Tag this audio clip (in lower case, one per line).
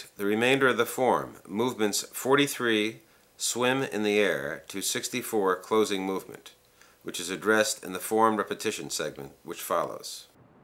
speech